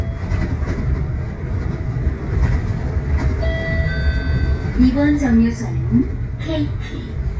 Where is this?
on a bus